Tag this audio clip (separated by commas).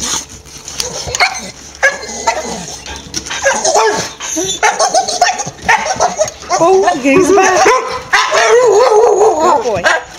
Dog, Domestic animals, Animal, Speech, Bark